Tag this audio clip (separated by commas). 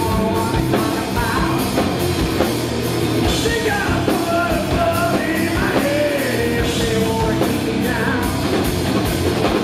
Music